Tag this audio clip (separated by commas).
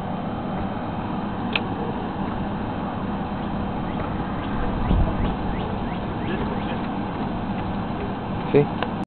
Speech, outside, urban or man-made